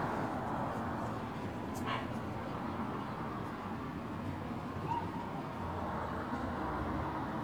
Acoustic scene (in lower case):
residential area